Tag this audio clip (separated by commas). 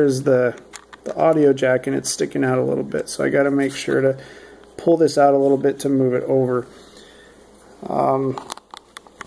Speech